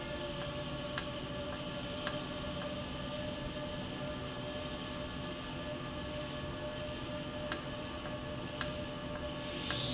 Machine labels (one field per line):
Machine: valve